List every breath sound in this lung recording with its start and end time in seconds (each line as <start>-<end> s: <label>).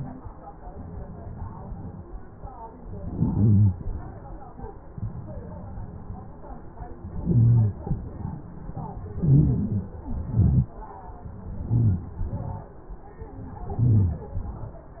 2.85-3.66 s: inhalation
2.85-3.66 s: stridor
3.70-4.37 s: exhalation
3.70-4.37 s: stridor
6.95-7.72 s: inhalation
6.95-7.72 s: stridor
7.74-8.35 s: exhalation
7.74-8.35 s: stridor
8.94-9.75 s: inhalation
8.94-9.75 s: stridor
9.77-10.36 s: exhalation
9.77-10.36 s: stridor
11.44-12.20 s: inhalation
11.44-12.20 s: rhonchi
12.22-12.83 s: exhalation
12.22-12.83 s: rhonchi
13.36-14.08 s: inhalation
13.36-14.08 s: rhonchi
14.12-14.72 s: exhalation
14.12-14.72 s: rhonchi